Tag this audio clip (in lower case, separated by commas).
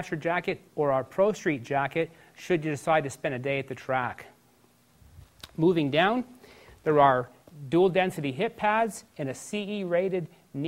speech